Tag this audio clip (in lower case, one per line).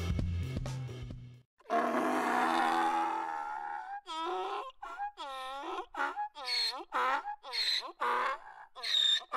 donkey